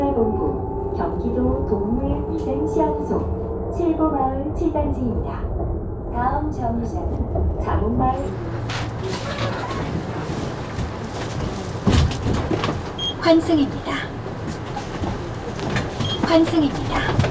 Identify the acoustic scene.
bus